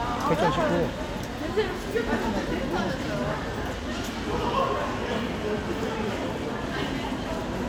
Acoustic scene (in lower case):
crowded indoor space